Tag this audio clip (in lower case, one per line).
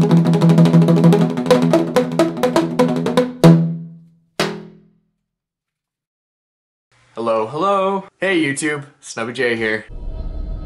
speech
inside a small room
music
musical instrument